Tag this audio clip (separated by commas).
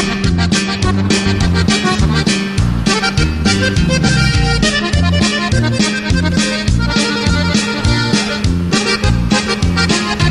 Music